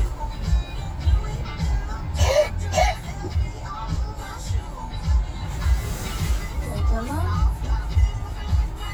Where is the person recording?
in a car